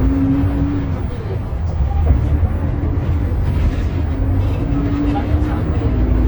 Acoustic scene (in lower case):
bus